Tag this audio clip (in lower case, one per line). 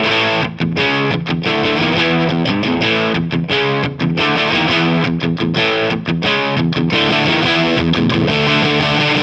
music
musical instrument
electric guitar
strum
guitar
plucked string instrument